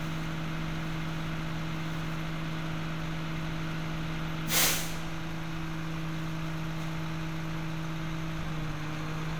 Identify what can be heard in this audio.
large-sounding engine